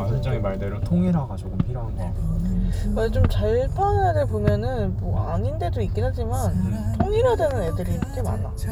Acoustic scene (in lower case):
car